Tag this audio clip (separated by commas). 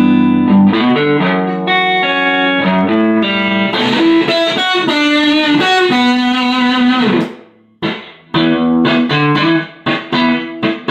Rock music, Plucked string instrument, Guitar, Music, Musical instrument, Electric guitar